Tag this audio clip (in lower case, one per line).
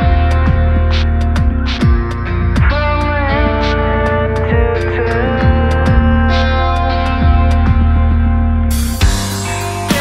heavy metal
punk rock
music